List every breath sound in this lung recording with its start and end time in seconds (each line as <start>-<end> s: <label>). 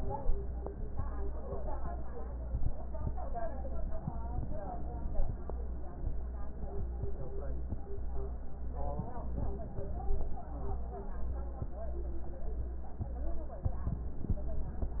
8.77-10.40 s: inhalation